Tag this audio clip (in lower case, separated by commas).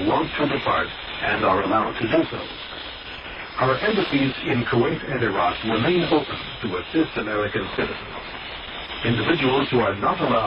speech, radio